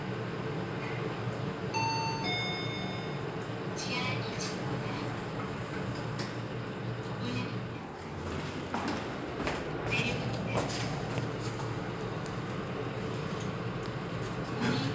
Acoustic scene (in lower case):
elevator